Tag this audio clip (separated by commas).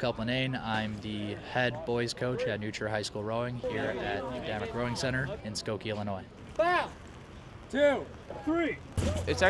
Speech